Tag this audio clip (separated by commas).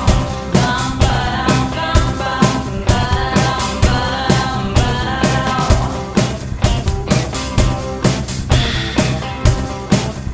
Music, Background music